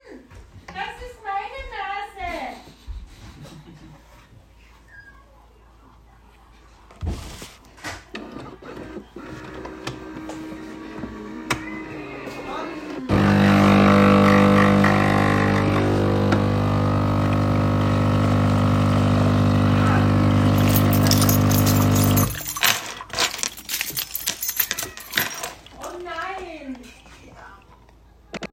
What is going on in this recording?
I turned on the coffee machine and put my keychain next to it